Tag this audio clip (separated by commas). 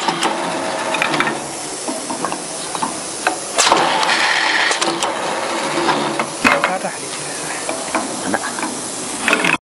Speech